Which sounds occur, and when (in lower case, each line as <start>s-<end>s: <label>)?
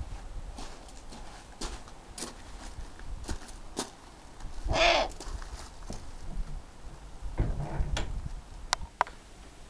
0.0s-9.6s: mechanisms
0.5s-1.3s: footsteps
1.6s-1.9s: footsteps
1.8s-1.9s: tick
2.2s-2.4s: footsteps
2.5s-2.8s: footsteps
2.9s-3.0s: tick
3.3s-3.5s: footsteps
3.7s-3.9s: footsteps
4.4s-4.5s: tick
4.7s-5.1s: bird vocalization
5.2s-5.6s: footsteps
5.8s-6.0s: footsteps
6.1s-6.3s: tick
7.4s-8.1s: generic impact sounds
8.7s-8.8s: tick
9.0s-9.1s: tick
9.4s-9.5s: tick